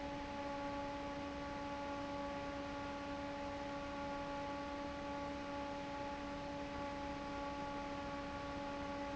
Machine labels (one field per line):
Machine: fan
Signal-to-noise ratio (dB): 6 dB